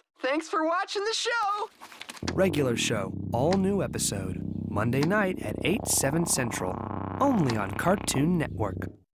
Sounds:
speech

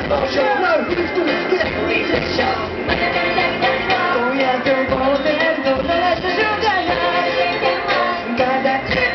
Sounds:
music

